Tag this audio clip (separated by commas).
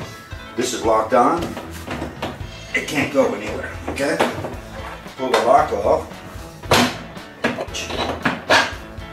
Music, Speech, inside a small room